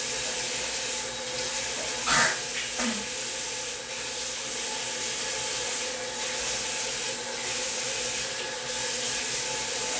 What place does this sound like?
restroom